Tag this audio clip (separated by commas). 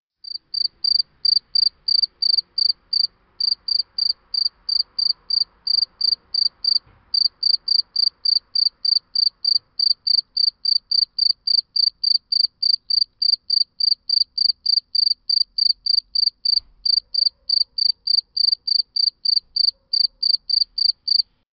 Insect, Animal, Cricket, Wild animals